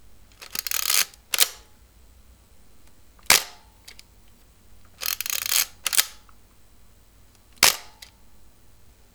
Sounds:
camera
mechanisms

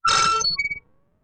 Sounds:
screech

